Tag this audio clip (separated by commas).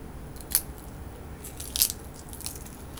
Crack